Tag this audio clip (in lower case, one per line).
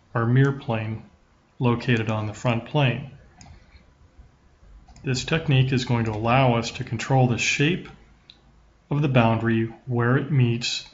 speech